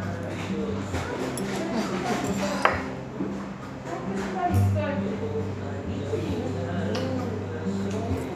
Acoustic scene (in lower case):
restaurant